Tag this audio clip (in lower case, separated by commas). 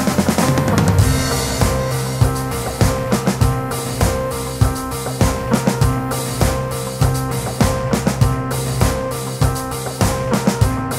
music